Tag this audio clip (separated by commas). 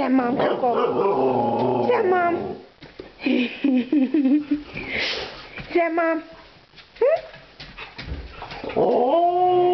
Animal, pets, Yip, Bark, Howl, Speech, Dog